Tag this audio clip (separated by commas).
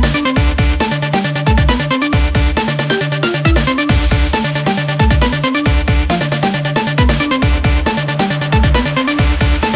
Techno, Trance music